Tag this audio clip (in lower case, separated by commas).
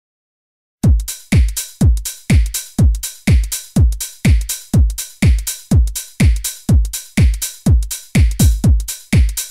music, electronic music, drum machine